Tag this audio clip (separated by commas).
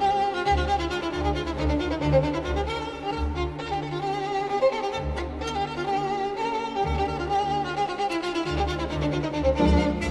Violin, Musical instrument, Music